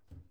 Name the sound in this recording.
wooden cupboard closing